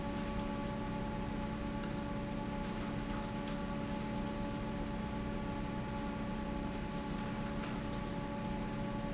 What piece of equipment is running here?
fan